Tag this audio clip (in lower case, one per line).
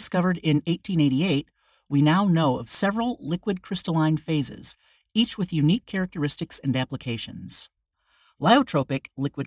speech